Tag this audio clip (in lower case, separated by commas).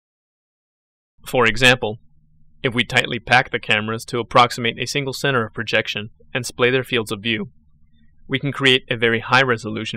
speech